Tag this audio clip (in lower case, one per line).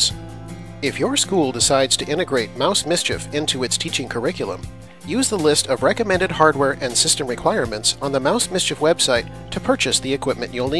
speech
music